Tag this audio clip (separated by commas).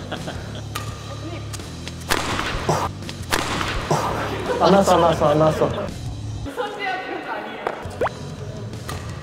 playing badminton